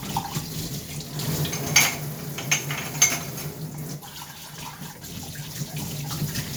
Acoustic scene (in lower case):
kitchen